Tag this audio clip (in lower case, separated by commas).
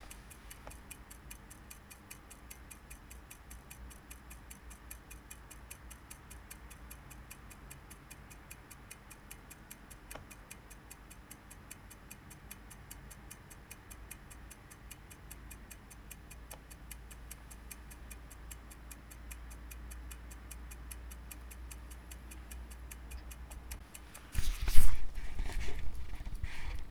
mechanisms, clock